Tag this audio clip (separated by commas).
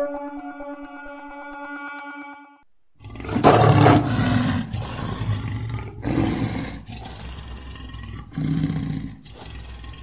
lions roaring